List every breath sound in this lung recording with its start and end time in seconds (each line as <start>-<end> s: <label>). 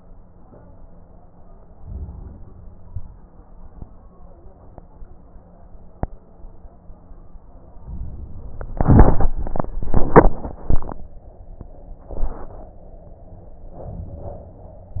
1.77-2.75 s: inhalation
7.81-8.80 s: inhalation
13.74-14.81 s: inhalation